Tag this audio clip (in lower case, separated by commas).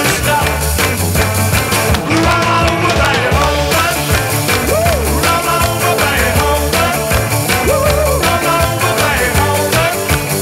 ska, music